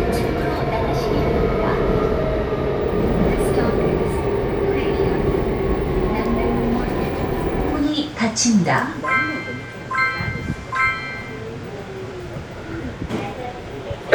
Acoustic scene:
subway train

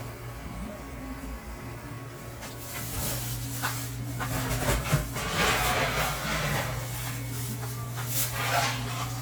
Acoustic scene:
cafe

